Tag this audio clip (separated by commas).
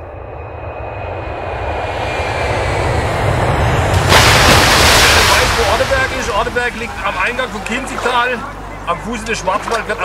Speech, Stream